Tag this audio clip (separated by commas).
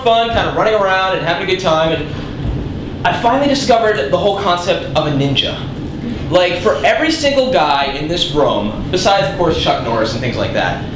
Speech